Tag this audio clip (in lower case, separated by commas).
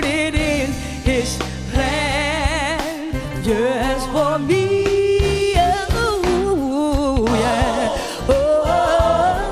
female singing, music